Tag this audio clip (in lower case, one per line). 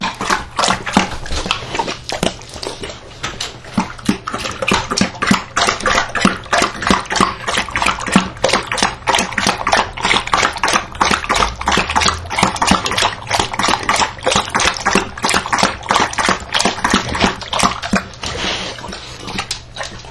pets
dog
animal